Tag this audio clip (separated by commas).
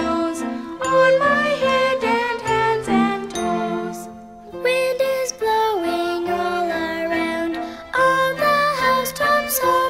Music